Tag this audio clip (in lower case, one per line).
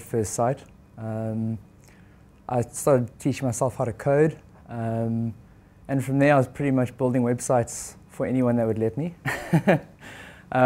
speech